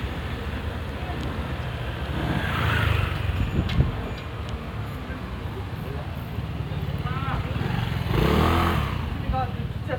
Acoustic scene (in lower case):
residential area